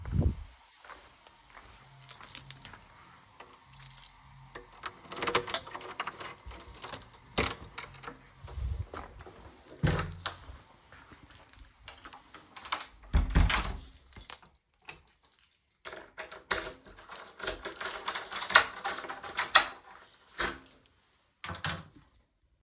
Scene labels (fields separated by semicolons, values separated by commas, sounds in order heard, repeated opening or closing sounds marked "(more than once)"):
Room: hallway; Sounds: footsteps, keys, door (more than once), light switch